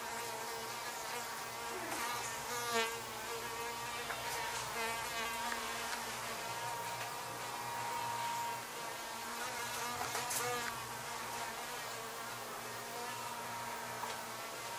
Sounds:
Wild animals, Insect, Buzz, Animal

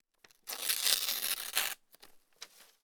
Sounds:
Tearing

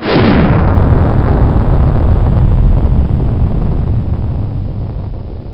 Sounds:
Explosion

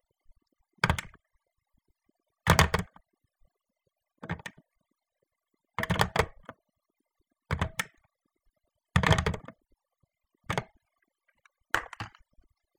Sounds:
Telephone, Alarm

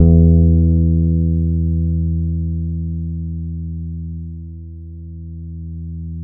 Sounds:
Bass guitar, Guitar, Plucked string instrument, Musical instrument, Music

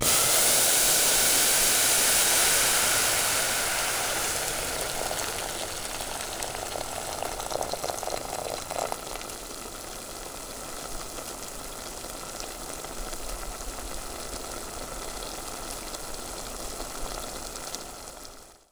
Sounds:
Boiling, Liquid

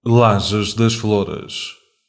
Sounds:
Human voice

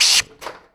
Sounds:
Tools

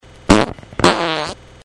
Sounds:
Fart

